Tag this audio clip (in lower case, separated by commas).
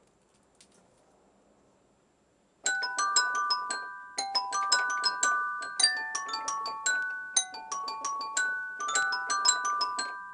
keyboard (musical), piano, musical instrument, music